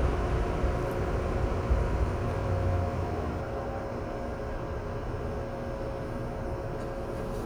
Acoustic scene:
subway train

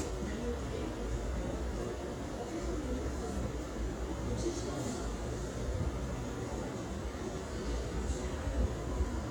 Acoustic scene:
subway station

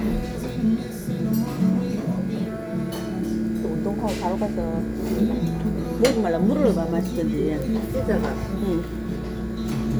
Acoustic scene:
restaurant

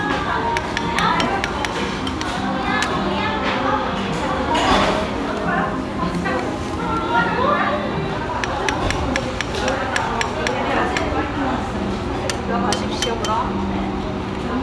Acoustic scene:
restaurant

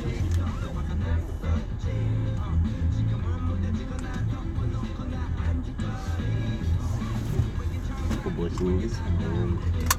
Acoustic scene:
car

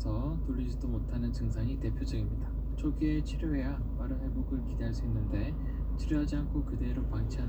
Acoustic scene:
car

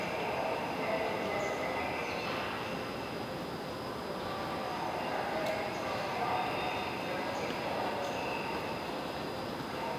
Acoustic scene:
subway station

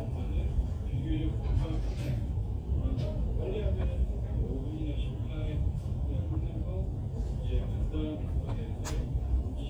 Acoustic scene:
crowded indoor space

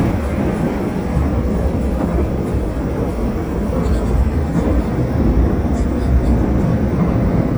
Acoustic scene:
subway train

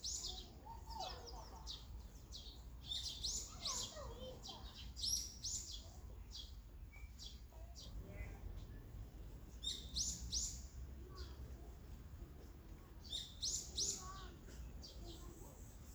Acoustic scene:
park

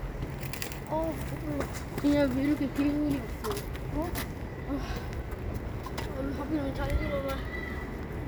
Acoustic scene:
residential area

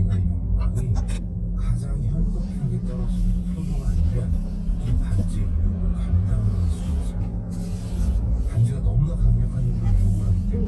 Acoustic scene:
car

